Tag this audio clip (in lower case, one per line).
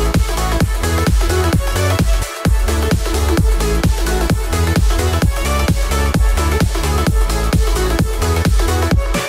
music